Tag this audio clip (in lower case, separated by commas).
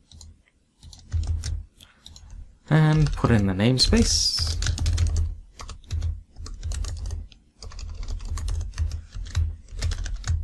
computer keyboard, speech